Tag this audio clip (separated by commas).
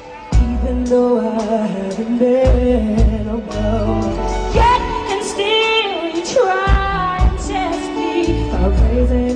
Female singing, Music